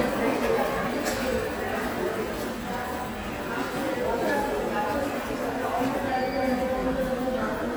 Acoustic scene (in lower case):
subway station